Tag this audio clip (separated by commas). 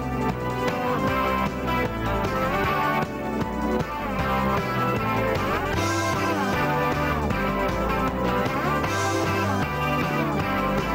Music